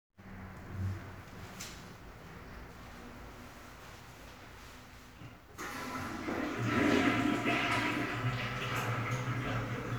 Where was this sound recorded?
in a restroom